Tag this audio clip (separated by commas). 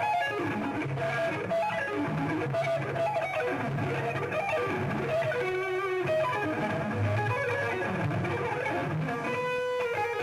Plucked string instrument, Guitar, Bass guitar, Music, Musical instrument